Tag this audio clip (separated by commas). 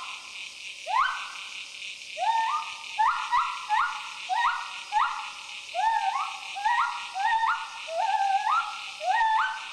gibbon howling